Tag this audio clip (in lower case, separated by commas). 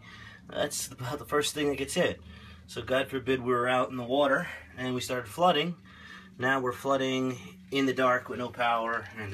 speech